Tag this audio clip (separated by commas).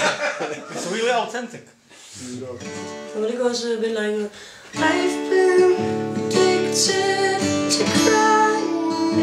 Music, Speech